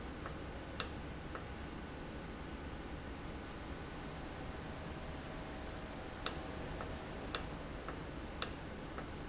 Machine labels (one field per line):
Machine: valve